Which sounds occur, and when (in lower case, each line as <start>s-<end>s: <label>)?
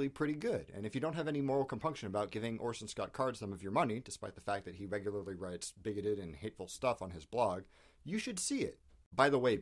0.0s-9.6s: background noise
0.0s-0.6s: man speaking
0.7s-4.0s: man speaking
4.1s-5.7s: man speaking
5.8s-7.6s: man speaking
7.6s-7.9s: breathing
8.1s-8.8s: man speaking
9.1s-9.6s: man speaking